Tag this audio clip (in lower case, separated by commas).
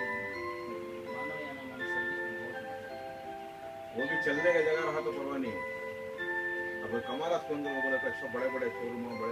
music, speech